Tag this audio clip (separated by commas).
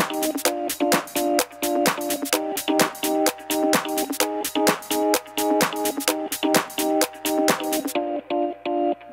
Music